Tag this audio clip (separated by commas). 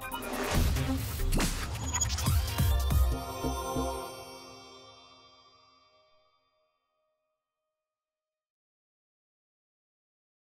Music